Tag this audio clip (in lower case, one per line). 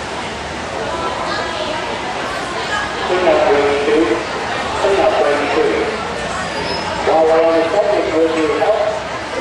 speech